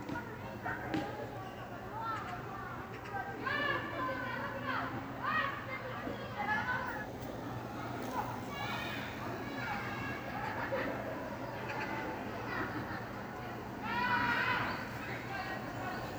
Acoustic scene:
park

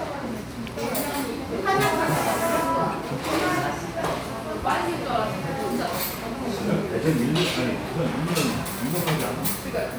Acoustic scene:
crowded indoor space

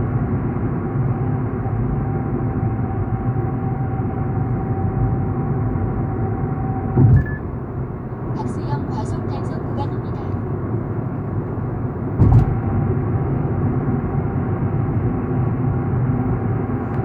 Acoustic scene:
car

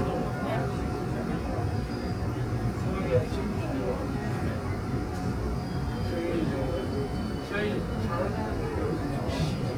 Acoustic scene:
subway train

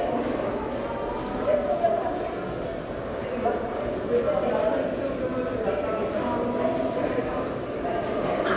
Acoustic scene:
subway station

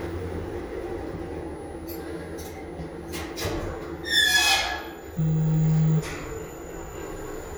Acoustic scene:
elevator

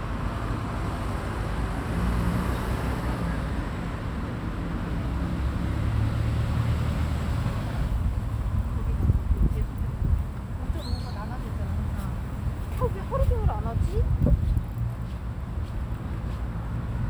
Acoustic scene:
residential area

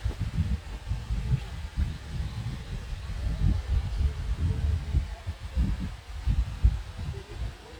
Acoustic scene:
park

